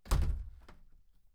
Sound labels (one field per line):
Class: window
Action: closing